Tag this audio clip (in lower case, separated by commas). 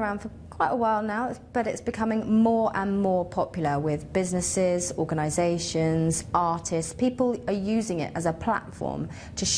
speech